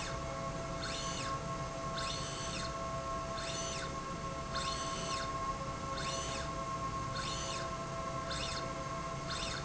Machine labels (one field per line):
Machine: slide rail